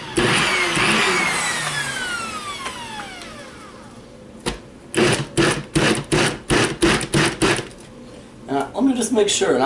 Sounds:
Blender

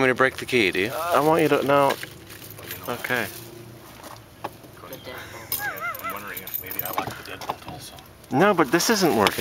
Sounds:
Speech

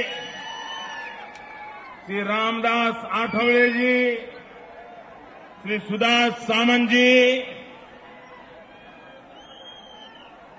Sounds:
man speaking, Narration, Speech

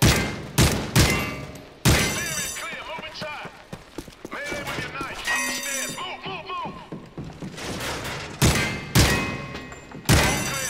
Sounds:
gunfire, Fusillade

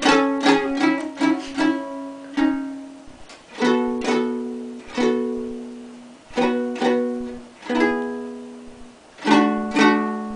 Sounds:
Ukulele, Music

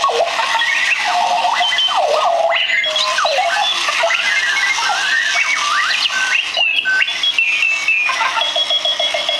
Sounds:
Music

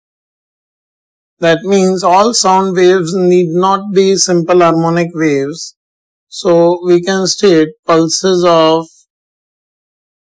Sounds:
Speech

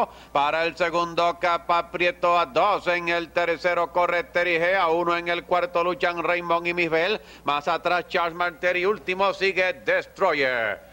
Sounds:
Speech

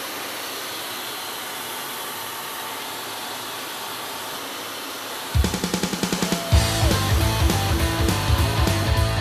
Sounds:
Music

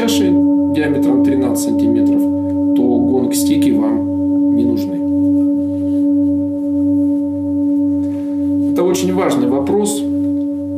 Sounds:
singing bowl

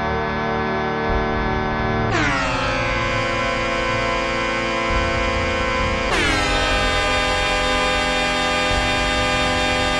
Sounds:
Music, Air horn

